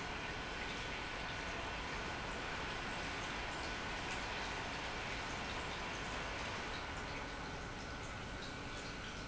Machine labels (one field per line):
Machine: pump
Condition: normal